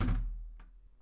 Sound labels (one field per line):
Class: window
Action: closing